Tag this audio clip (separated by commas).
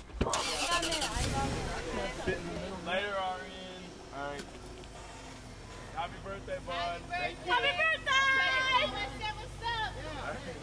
Speech